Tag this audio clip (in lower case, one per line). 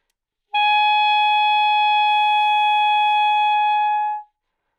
music
woodwind instrument
musical instrument